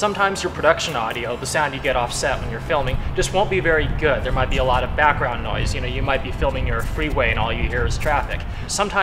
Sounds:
speech

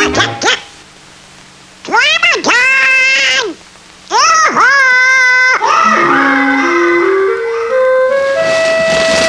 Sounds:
screaming

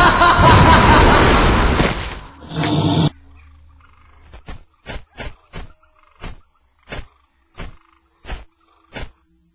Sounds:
snicker

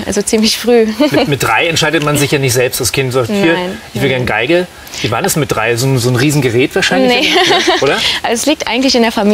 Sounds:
speech

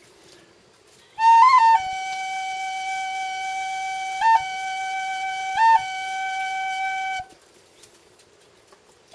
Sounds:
flute, wind instrument

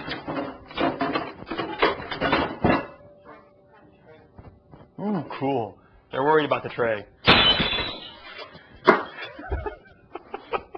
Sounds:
speech, inside a small room

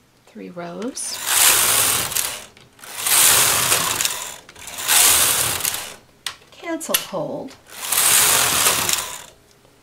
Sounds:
gears, mechanisms, pawl

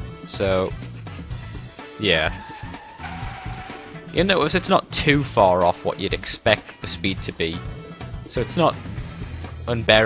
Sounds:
speech, music

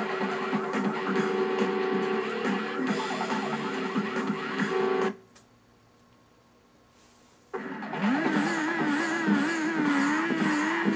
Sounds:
music, vehicle

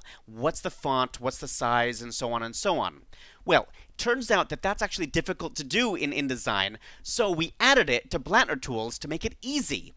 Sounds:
speech

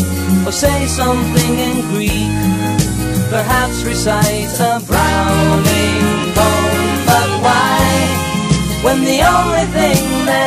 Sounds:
music, happy music

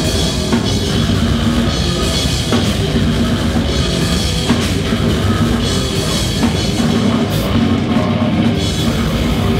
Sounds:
music

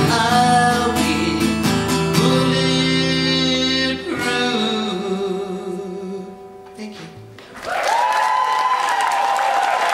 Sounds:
singing, pop music, music

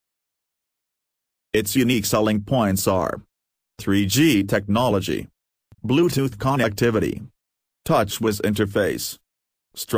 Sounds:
speech

